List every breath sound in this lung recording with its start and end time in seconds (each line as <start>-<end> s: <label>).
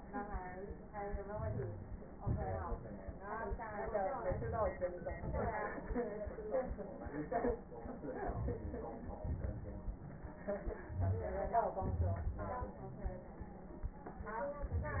0.81-2.01 s: inhalation
0.81-2.01 s: crackles
2.01-3.10 s: exhalation
2.01-3.10 s: crackles
4.22-5.03 s: inhalation
4.22-5.03 s: crackles
5.05-6.34 s: exhalation
5.05-6.34 s: crackles
7.68-9.04 s: inhalation
7.68-9.04 s: crackles
9.08-10.35 s: exhalation
9.08-10.35 s: crackles
10.75-11.74 s: inhalation
10.75-11.74 s: crackles
11.74-13.91 s: exhalation
12.79-13.39 s: crackles